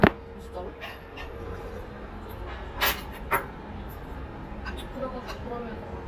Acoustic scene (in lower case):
restaurant